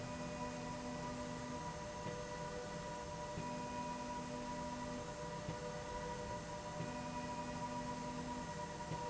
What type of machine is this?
slide rail